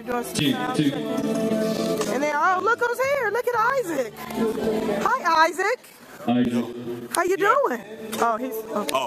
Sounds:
Speech, Gospel music, Music

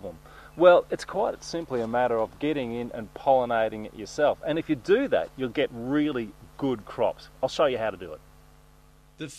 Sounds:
Speech

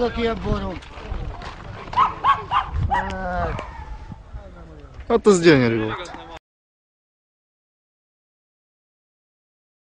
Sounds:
Speech

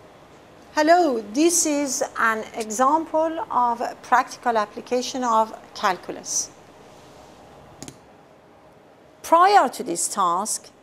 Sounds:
Speech

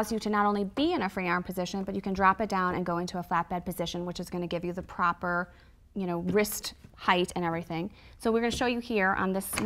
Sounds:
Speech

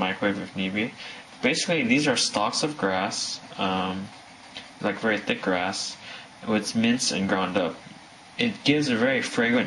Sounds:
Speech

